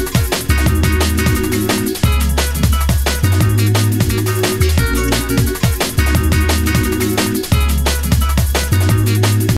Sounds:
music

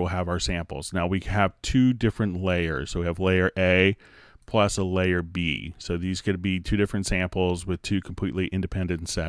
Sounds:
speech

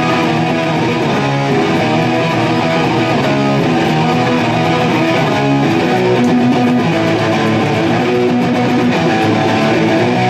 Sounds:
electric guitar
strum
plucked string instrument
guitar
musical instrument
music

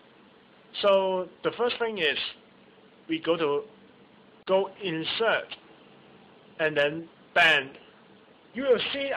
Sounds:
speech

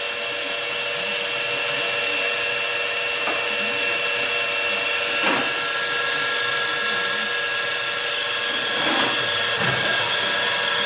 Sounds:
speech

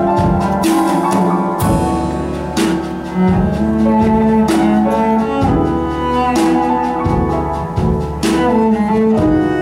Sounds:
musical instrument
playing double bass
double bass
music

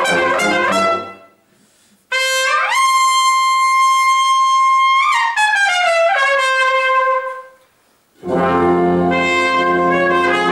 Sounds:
trumpet
orchestra
inside a large room or hall
music
clarinet
brass instrument
classical music

